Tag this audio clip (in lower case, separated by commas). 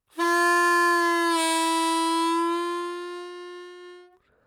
music, harmonica, musical instrument